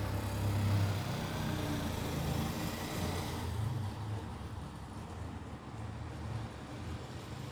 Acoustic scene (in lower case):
residential area